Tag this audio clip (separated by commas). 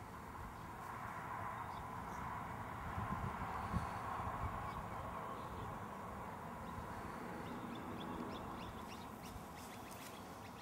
Animal